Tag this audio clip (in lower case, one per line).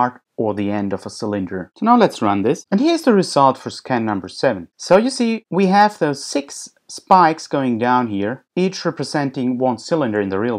speech